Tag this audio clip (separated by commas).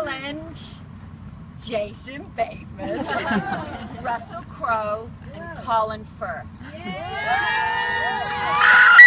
Speech